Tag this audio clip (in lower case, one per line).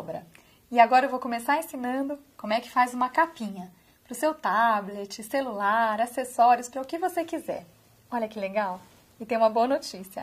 speech